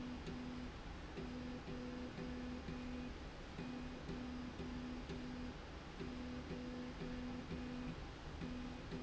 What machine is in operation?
slide rail